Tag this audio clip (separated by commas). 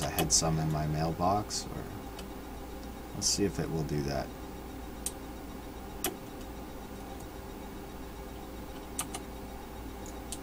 Typing